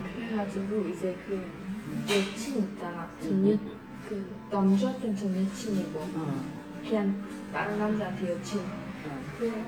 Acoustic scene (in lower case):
crowded indoor space